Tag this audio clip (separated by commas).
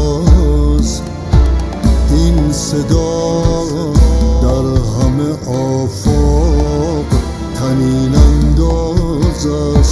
Music